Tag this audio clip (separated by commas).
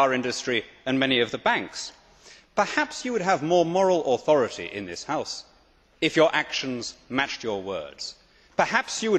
Speech, man speaking, Narration